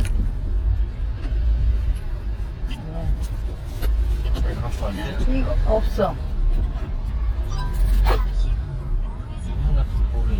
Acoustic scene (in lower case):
car